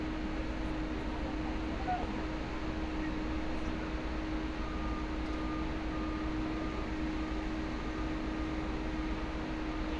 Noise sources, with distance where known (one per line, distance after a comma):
reverse beeper, far